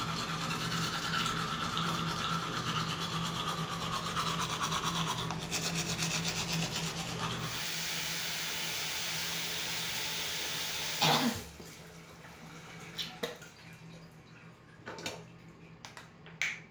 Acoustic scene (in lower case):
restroom